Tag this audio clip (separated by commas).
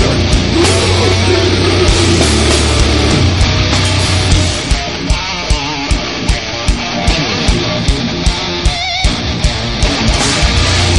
Heavy metal, Music